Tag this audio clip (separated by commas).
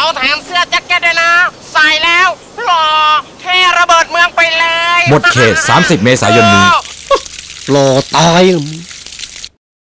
Speech